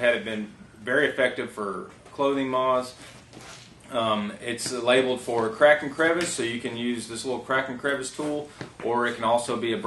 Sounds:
Speech

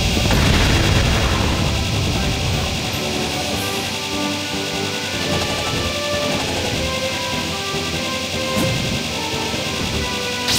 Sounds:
Music, Smash

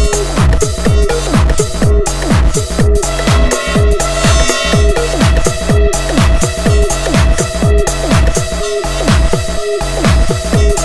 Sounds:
Music, Electronica

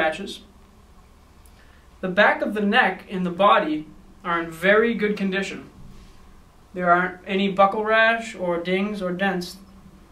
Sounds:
Speech

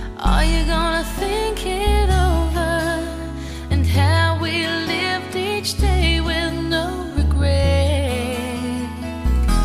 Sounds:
Music

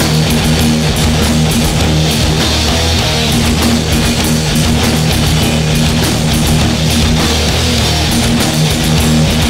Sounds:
Music

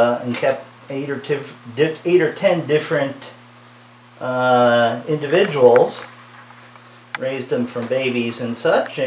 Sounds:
Animal, Snake, Speech

